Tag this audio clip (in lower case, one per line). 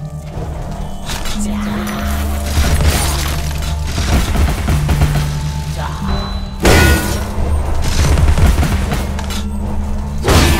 fusillade